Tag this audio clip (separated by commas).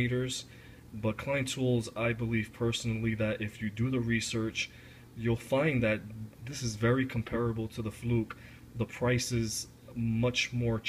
Speech